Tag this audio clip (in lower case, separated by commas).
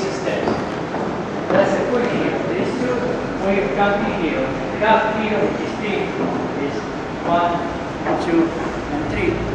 speech